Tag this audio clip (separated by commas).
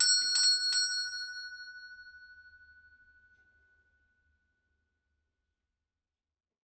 home sounds, Door, Bell, Alarm, Doorbell